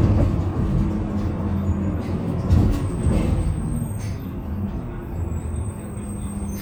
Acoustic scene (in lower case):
bus